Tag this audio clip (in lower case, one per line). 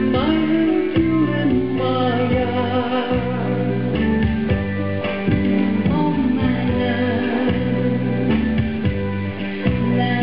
music